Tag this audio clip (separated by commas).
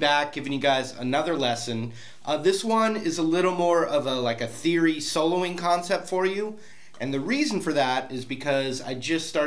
Speech